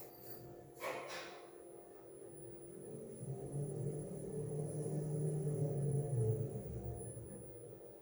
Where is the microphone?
in an elevator